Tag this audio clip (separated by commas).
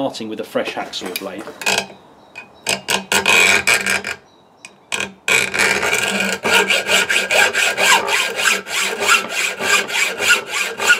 Speech, inside a small room